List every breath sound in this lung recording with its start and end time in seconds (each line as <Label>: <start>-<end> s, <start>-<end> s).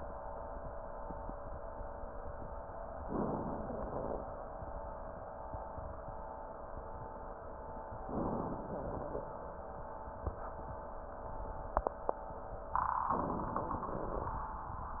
Inhalation: 3.07-3.68 s, 8.08-8.69 s, 13.13-13.85 s
Exhalation: 3.67-4.43 s, 8.68-9.29 s, 13.85-14.50 s
Crackles: 13.85-14.50 s